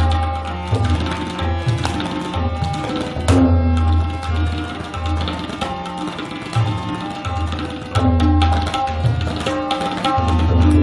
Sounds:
playing tabla

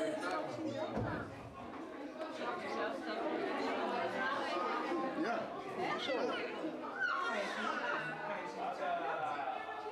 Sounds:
speech

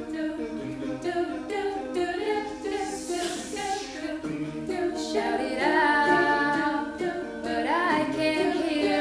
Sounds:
a capella
music

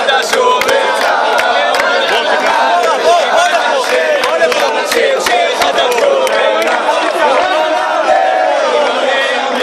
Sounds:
choir
speech
male singing

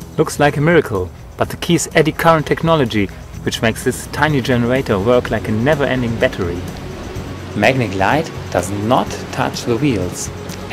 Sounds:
music
speech

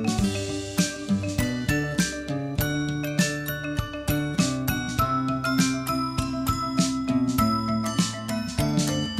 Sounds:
music

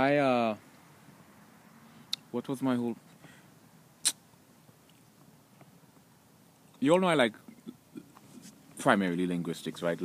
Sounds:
speech

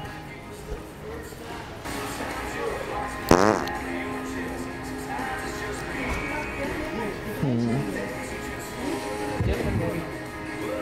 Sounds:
people farting

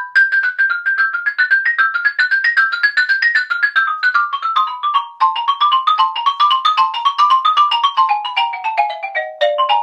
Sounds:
music
percussion

